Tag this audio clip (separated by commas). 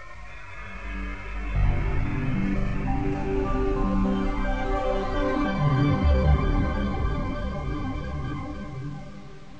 Music